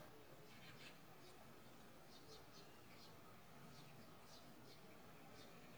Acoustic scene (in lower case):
park